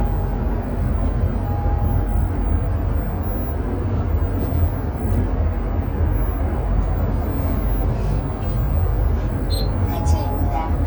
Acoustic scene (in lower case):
bus